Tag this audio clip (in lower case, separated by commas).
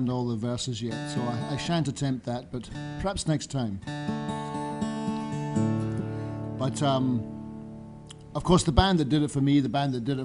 speech, music